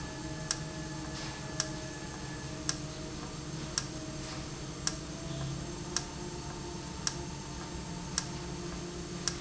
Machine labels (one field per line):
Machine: valve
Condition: normal